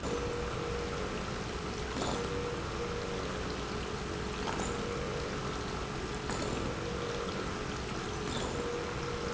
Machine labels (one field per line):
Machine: pump